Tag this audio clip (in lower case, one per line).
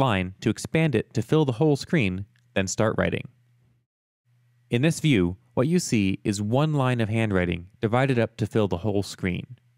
speech